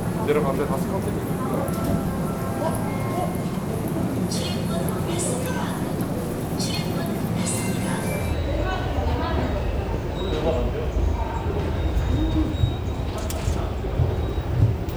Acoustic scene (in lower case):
subway station